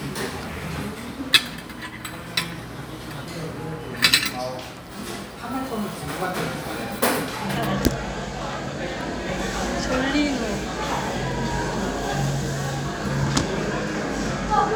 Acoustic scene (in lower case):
crowded indoor space